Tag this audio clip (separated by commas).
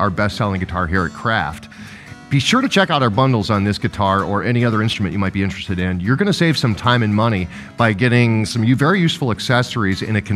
Speech, Music